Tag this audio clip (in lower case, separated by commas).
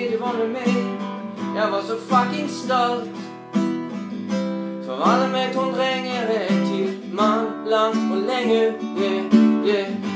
musical instrument, plucked string instrument, guitar, acoustic guitar, music